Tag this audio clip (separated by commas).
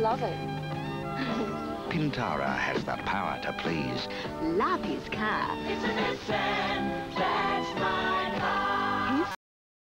Speech, Music